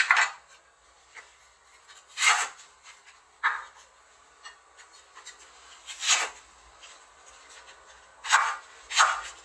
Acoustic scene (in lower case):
kitchen